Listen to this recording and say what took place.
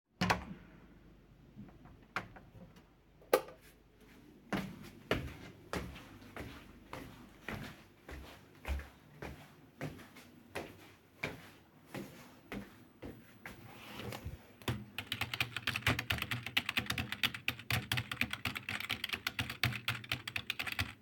The door is opened and I turn on the light, I walk into the room, and type on the keyboard for several seconds.